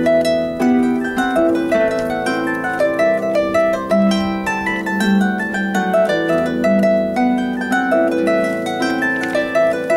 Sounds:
harp
music

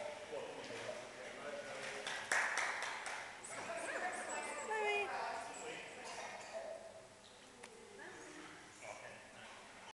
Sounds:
speech

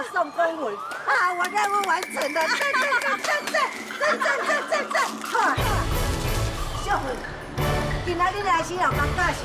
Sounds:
splashing water

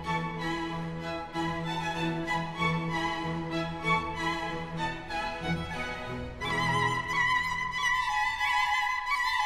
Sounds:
wedding music
music

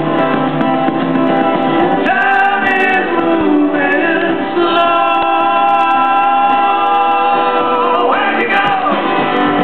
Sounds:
music
rhythm and blues

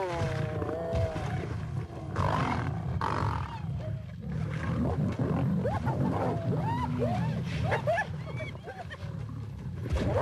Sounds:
wild animals
roaring cats
animal
lions growling

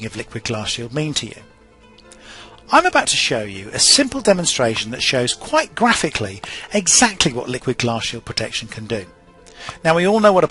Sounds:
speech
music

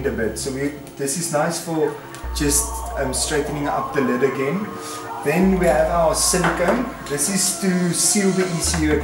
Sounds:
music
speech

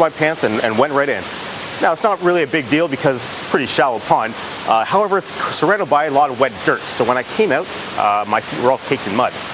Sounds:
speech
rain on surface

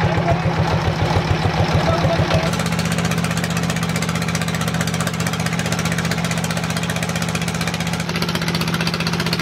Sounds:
motorboat
boat

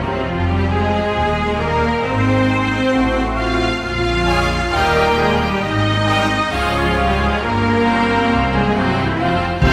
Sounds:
music

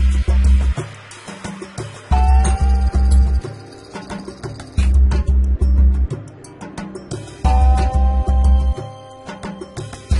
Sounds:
music

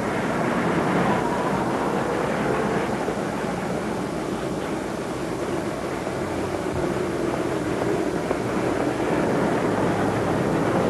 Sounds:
bus
outside, urban or man-made
vehicle

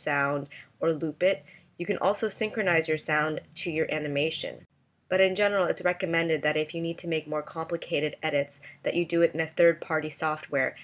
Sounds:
speech

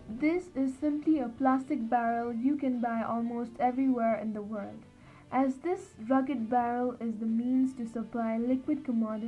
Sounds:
speech

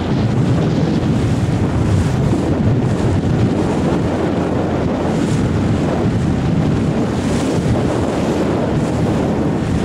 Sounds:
water

